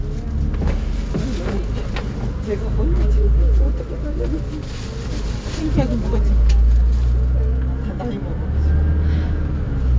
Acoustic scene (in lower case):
bus